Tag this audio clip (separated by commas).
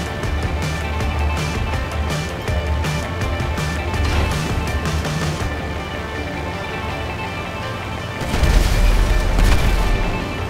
Vehicle, Helicopter, Music